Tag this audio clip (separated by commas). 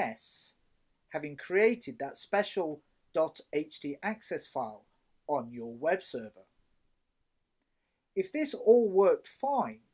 Speech